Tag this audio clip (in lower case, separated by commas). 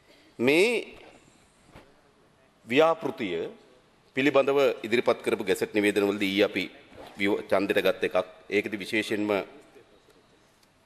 man speaking, speech, monologue